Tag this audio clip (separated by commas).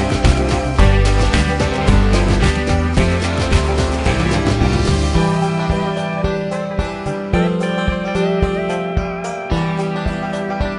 Music